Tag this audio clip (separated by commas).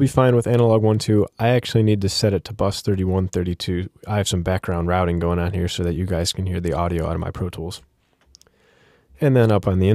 Speech